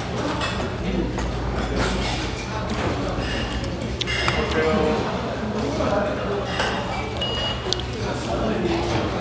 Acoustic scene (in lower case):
restaurant